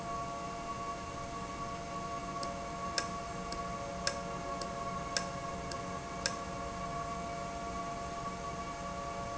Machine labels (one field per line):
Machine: valve